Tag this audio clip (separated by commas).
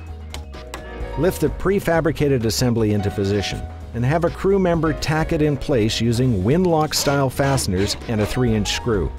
Speech, Music